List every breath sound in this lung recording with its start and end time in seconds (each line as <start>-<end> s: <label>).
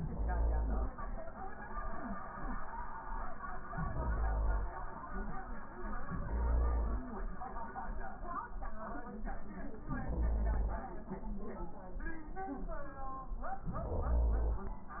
0.00-0.92 s: inhalation
3.74-4.79 s: inhalation
6.09-7.15 s: inhalation
9.79-10.84 s: inhalation
13.62-14.80 s: inhalation